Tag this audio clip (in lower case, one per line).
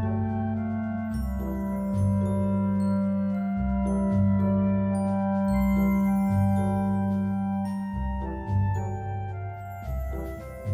marimba